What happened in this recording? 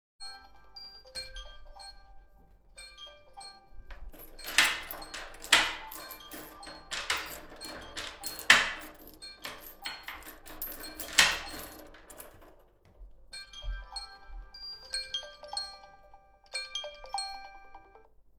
my phone rang and I run to the room to answer it